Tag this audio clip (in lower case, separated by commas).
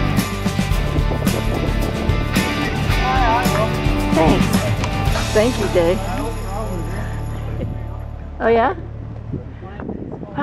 speech, music